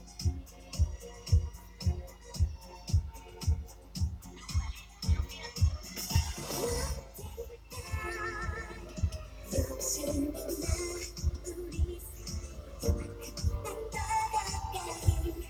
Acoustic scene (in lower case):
car